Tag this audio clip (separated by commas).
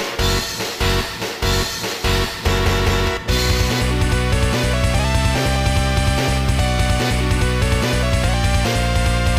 Music